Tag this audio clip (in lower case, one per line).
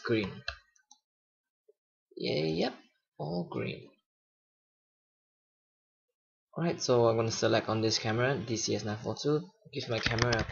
speech